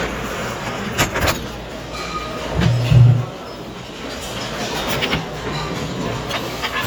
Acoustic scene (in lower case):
restaurant